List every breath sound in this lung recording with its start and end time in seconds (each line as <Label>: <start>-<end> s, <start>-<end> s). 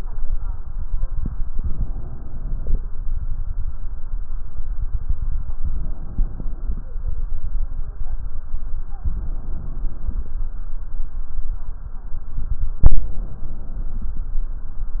Inhalation: 1.50-2.82 s, 5.63-6.96 s, 9.04-10.36 s, 12.86-14.28 s
Stridor: 0.65-1.49 s
Crackles: 1.50-2.82 s